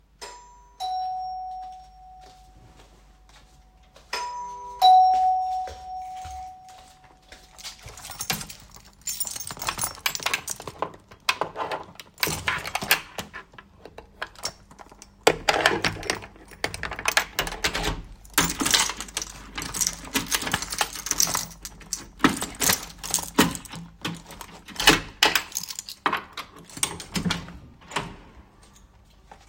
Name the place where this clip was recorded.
hallway